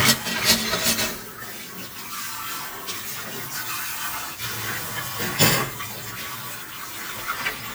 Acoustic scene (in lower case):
kitchen